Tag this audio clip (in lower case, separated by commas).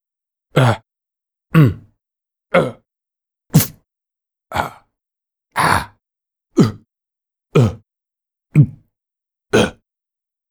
human voice